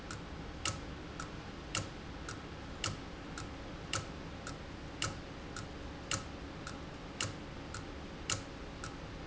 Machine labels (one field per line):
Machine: valve